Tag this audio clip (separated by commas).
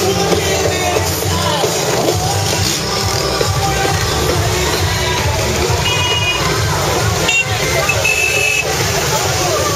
Music